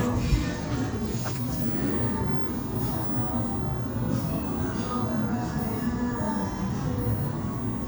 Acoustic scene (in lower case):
cafe